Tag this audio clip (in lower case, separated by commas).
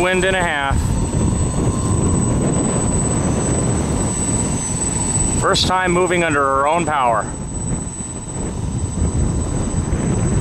aircraft, vehicle, airplane